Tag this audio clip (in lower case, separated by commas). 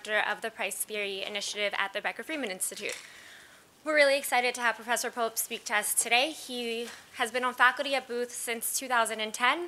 speech